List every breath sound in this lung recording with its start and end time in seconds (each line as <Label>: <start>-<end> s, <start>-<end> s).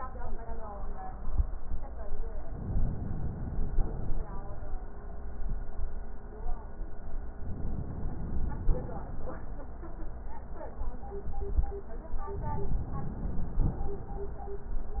Inhalation: 2.47-3.75 s, 7.42-8.79 s, 12.29-13.68 s
Exhalation: 3.75-4.73 s, 8.79-9.51 s, 13.68-14.45 s